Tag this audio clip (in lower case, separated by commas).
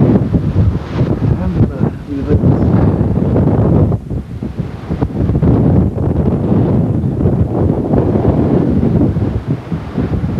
tornado roaring